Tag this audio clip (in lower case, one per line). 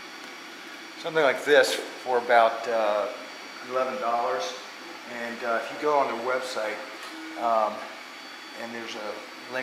speech